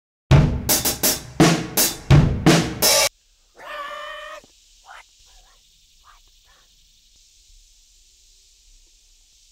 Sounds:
drum, speech, bass drum, music

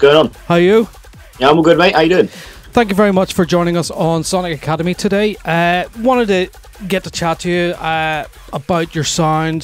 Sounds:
music, speech

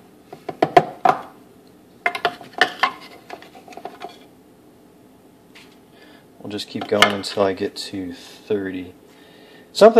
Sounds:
speech

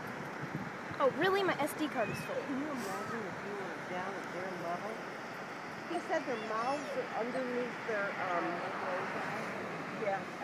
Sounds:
speech

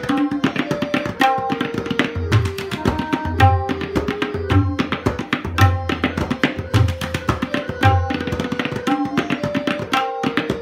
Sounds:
playing tabla

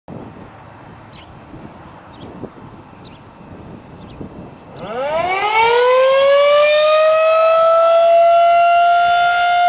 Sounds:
civil defense siren, siren

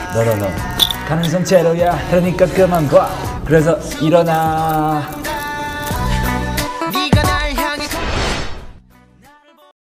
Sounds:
speech, music

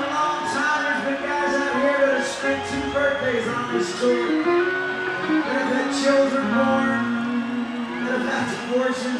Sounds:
music, man speaking, monologue, speech

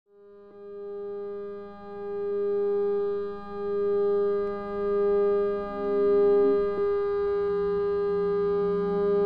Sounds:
music, musical instrument, guitar, electric guitar, plucked string instrument

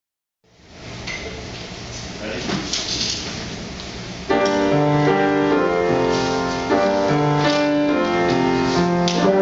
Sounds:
playing trombone

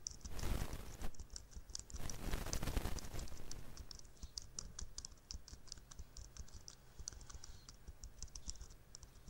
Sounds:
clicking

